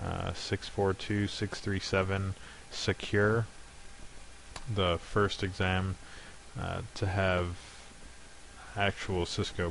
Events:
0.0s-0.3s: human voice
0.0s-9.7s: mechanisms
0.3s-2.3s: male speech
2.3s-2.7s: breathing
2.7s-3.4s: male speech
4.5s-4.6s: clicking
4.7s-5.9s: male speech
6.0s-6.4s: breathing
6.6s-6.8s: human voice
6.9s-7.5s: male speech
7.5s-7.9s: surface contact
8.8s-9.7s: male speech

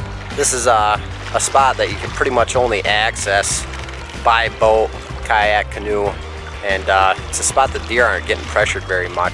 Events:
0.0s-9.3s: water vehicle
0.0s-9.3s: music
0.4s-0.9s: man speaking
1.3s-2.0s: man speaking
2.2s-3.6s: man speaking
4.2s-4.4s: man speaking
4.6s-4.8s: man speaking
5.3s-6.1s: man speaking
6.6s-7.1s: man speaking
7.3s-7.7s: man speaking
7.9s-8.4s: man speaking
8.5s-9.3s: man speaking

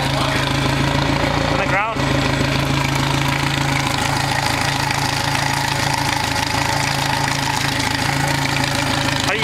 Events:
0.0s-1.1s: man speaking
0.0s-9.4s: mechanisms
1.5s-2.1s: man speaking

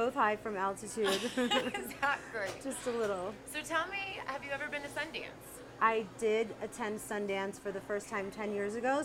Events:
0.0s-9.0s: background noise
0.1s-1.3s: female speech
1.3s-1.9s: laughter
1.9s-2.7s: female speech
2.8s-3.3s: female speech
3.5s-5.3s: female speech
5.8s-6.5s: female speech
6.8s-9.0s: female speech

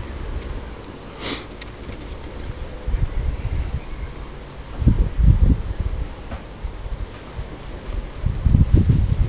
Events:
0.0s-9.2s: wind
1.1s-1.5s: sniff
7.1s-7.2s: generic impact sounds
7.8s-9.2s: wind noise (microphone)

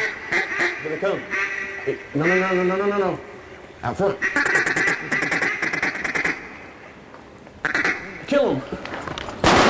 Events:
0.0s-0.7s: duck
0.0s-9.6s: background noise
0.8s-1.2s: male speech
1.3s-2.0s: duck
1.8s-3.2s: male speech
2.1s-2.6s: duck
4.2s-6.4s: duck
7.2s-7.2s: tick
7.4s-7.5s: tick
7.6s-8.0s: duck
8.3s-8.7s: male speech
8.7s-9.4s: generic impact sounds

